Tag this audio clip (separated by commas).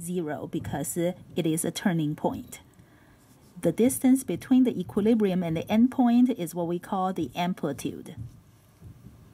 Speech